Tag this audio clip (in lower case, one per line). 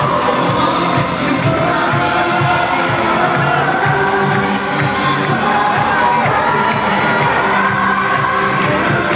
crowd